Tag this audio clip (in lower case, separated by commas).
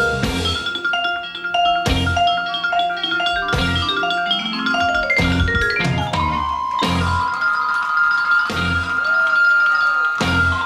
playing vibraphone